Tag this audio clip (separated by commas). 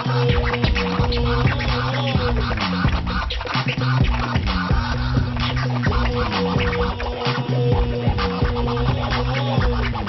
inside a large room or hall, Scratching (performance technique), Music